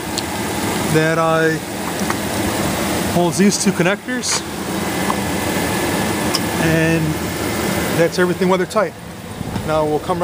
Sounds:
speech, vehicle

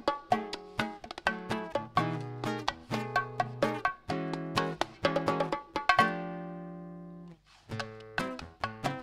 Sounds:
playing bongo

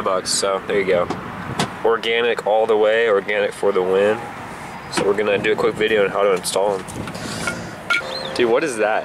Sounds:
car, vehicle

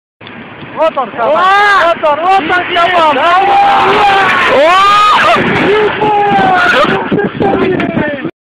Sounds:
speech, truck, vehicle

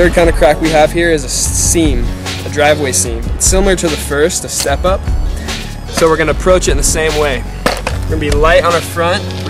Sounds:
music, skateboard, speech

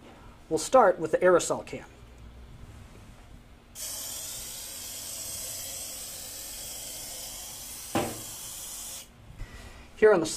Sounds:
speech, spray

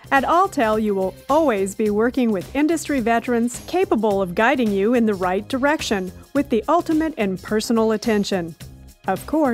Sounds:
music, sound effect, speech

